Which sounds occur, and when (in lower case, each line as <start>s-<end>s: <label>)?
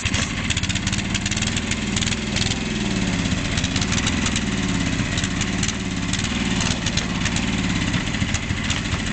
0.0s-9.1s: lawn mower
0.1s-0.3s: generic impact sounds
7.9s-8.1s: generic impact sounds
8.3s-8.4s: generic impact sounds
8.6s-9.0s: generic impact sounds